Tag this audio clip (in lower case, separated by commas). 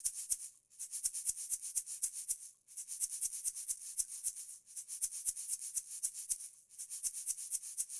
musical instrument, rattle (instrument), music, percussion